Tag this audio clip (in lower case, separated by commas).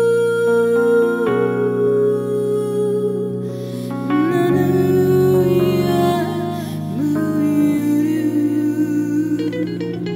music